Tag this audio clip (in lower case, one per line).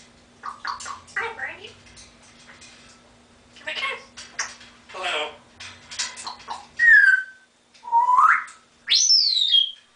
animal
speech